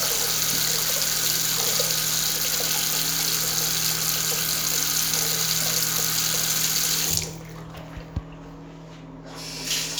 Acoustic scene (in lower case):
restroom